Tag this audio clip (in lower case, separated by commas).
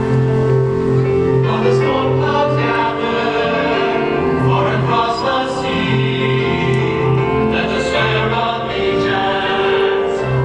choir, music